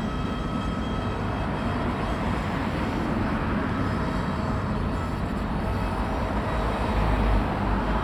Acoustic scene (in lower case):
residential area